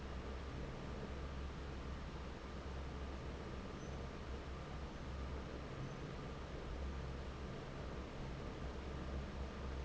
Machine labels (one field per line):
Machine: fan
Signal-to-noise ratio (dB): 6 dB